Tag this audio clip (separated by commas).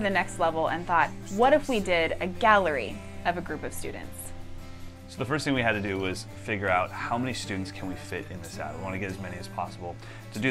Speech, Music